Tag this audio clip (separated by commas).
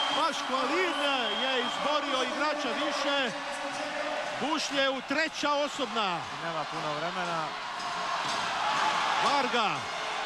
Speech